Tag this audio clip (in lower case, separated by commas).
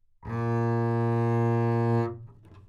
musical instrument, music, bowed string instrument